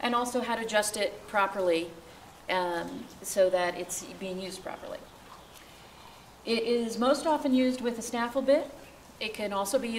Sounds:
speech

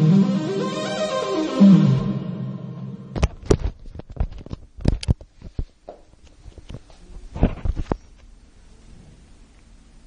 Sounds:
electric piano
music
musical instrument
synthesizer
piano

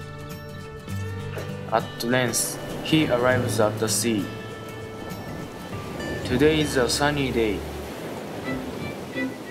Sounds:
speech
music

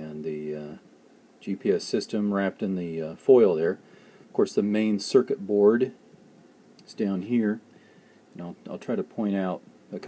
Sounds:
speech

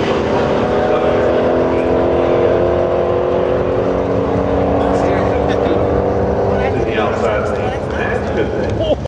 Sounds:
speech

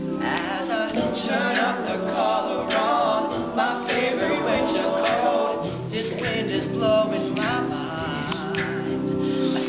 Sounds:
music

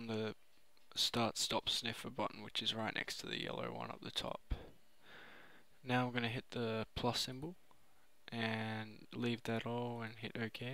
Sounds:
speech

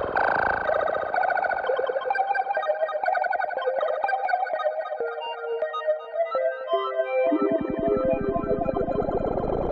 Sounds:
synthesizer
music

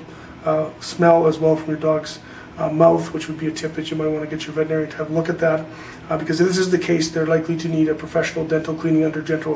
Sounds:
speech

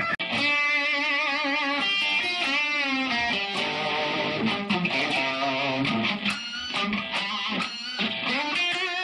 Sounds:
musical instrument
plucked string instrument
music
strum
electric guitar
guitar

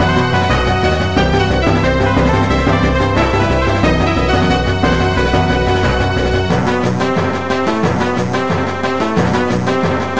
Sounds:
music
soundtrack music
exciting music

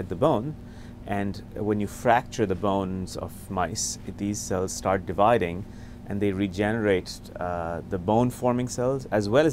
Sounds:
speech

